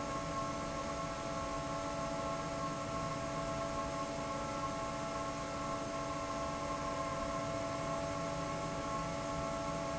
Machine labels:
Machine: fan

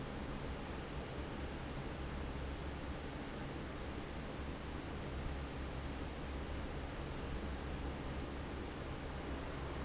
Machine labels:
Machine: fan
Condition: normal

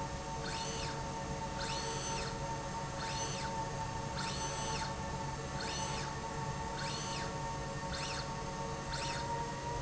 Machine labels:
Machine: slide rail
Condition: normal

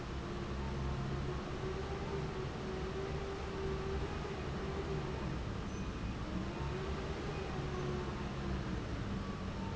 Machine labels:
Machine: fan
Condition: normal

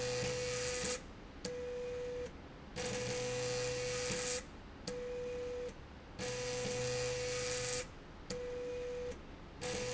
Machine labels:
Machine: slide rail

